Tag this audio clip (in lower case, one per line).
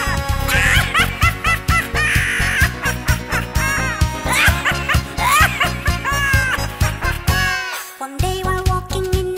music
snicker